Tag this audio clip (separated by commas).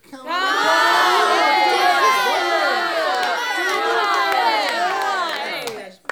Human group actions, Crowd